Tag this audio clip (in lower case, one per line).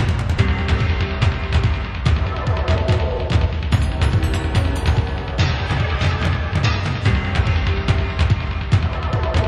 music